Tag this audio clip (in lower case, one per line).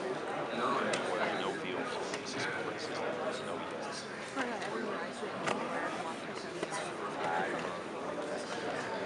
speech